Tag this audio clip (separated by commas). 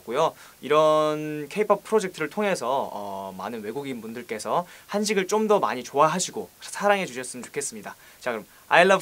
Speech